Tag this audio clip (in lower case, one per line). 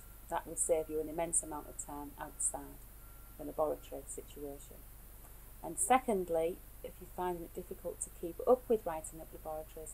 speech